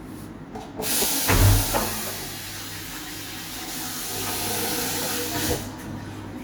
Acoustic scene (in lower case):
restroom